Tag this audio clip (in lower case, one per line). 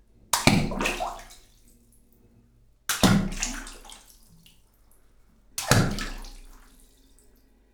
liquid
splatter